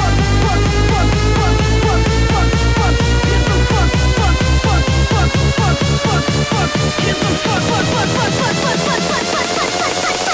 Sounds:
Electronic dance music

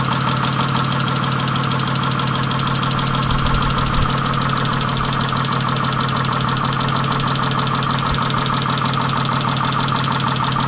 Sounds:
Engine, Vehicle

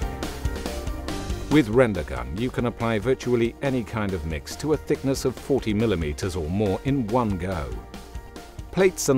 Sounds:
Speech, Music

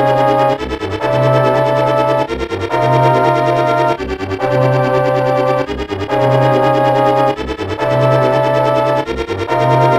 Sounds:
Music

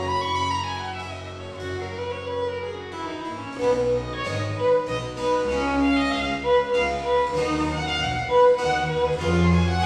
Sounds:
Violin, Musical instrument, Music

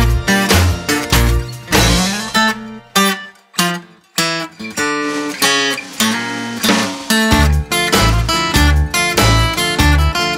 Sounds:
Guitar

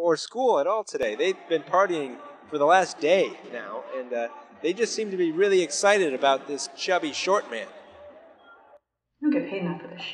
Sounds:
Speech

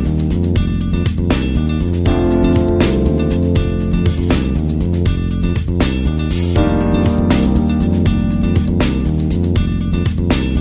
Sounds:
Music

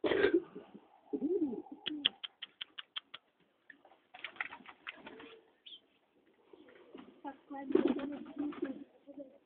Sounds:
Speech, Bird, Pigeon

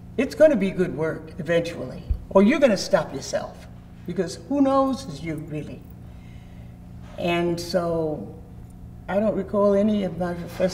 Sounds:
Speech

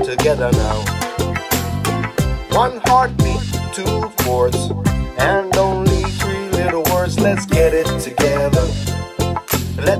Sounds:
Music

